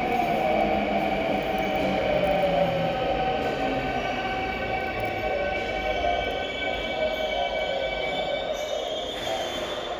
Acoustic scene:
subway station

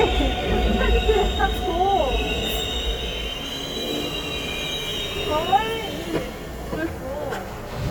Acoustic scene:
subway station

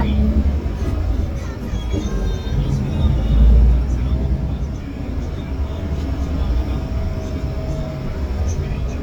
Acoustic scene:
bus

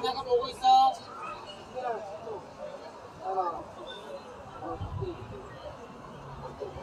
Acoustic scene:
park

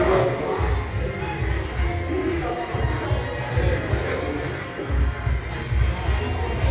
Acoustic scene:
crowded indoor space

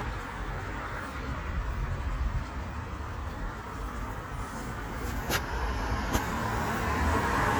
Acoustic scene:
street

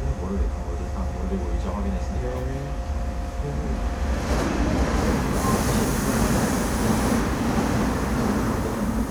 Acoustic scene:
subway train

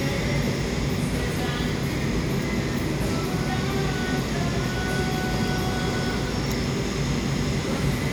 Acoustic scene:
cafe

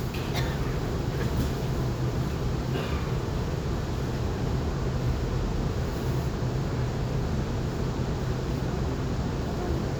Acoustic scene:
subway train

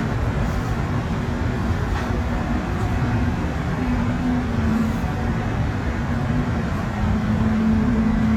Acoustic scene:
subway train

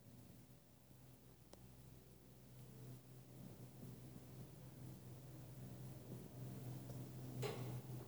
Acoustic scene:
elevator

